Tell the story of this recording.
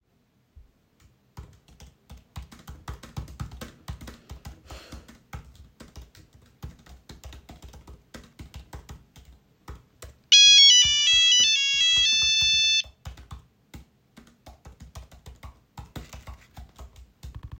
The device was placed on a desk in the office. I started typing on a keyboard. A phone ringing occurred while I was still typing.